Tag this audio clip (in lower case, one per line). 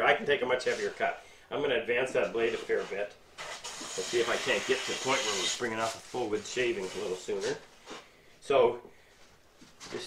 planing timber